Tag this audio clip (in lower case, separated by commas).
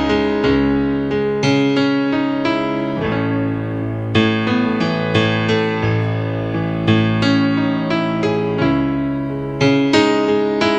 music